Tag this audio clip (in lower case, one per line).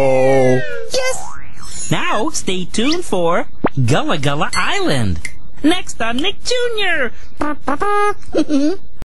speech